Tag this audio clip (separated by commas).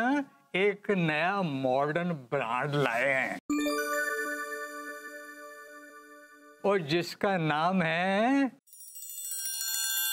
Speech, inside a small room, Music